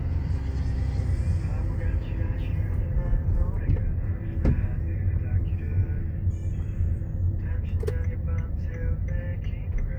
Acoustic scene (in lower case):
car